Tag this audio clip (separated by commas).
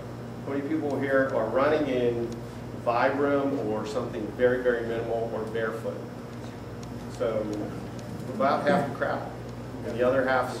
Speech